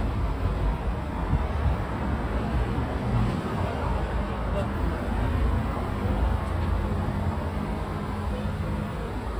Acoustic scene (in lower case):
street